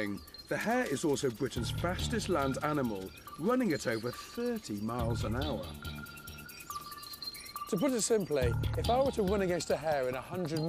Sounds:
Music, Speech, outside, rural or natural

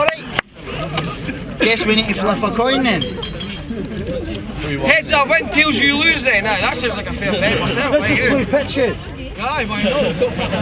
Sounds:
Speech

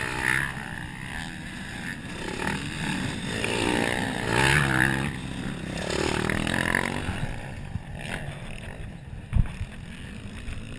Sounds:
Vehicle, Motorcycle

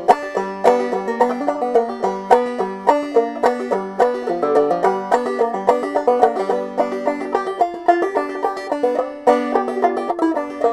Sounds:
Music

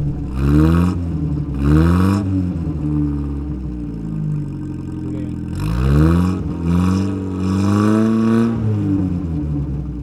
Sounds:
revving, Vehicle

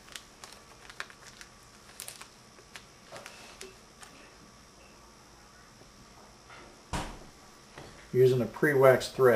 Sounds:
Speech

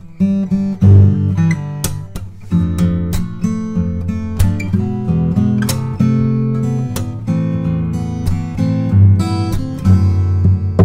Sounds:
Music

